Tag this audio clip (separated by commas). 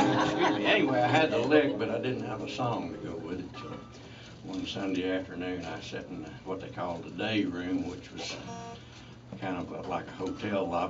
Speech